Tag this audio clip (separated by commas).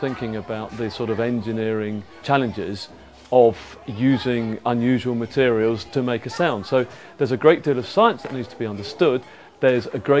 Speech